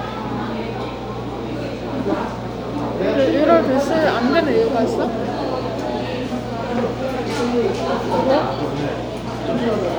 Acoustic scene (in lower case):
crowded indoor space